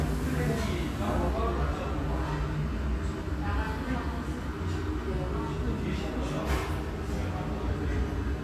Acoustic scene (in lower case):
restaurant